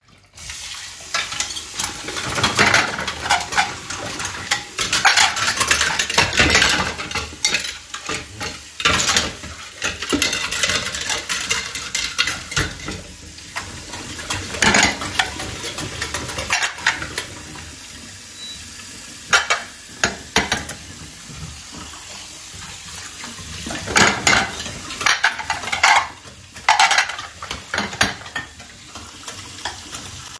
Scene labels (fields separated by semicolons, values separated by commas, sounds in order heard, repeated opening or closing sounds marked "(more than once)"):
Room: kitchen; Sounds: running water, cutlery and dishes